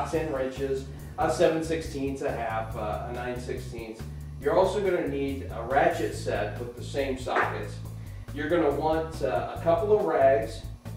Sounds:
Speech, Music

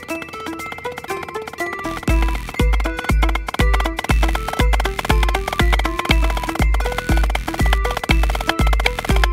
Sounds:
Wood block, Musical instrument, Drum, Music

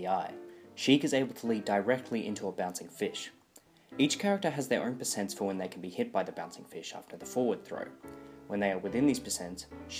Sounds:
Music, Speech

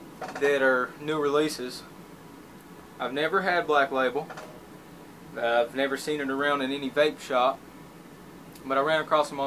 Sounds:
Speech

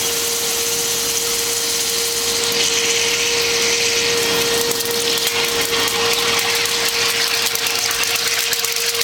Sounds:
Drill

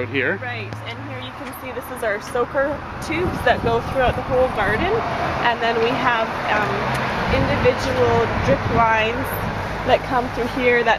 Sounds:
Speech

